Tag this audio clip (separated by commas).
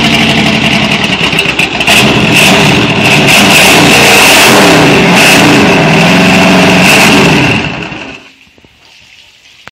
Vehicle, Motorboat